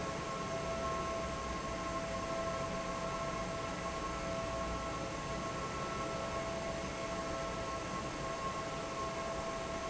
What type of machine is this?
fan